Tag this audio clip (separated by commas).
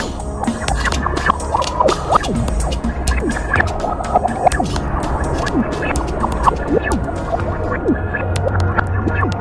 Music